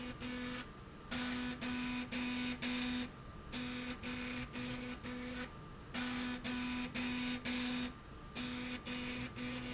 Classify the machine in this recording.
slide rail